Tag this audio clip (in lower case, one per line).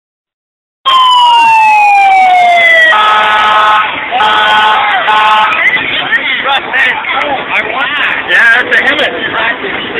siren
emergency vehicle